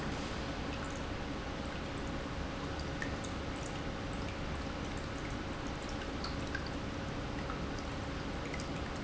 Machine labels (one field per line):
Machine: pump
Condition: normal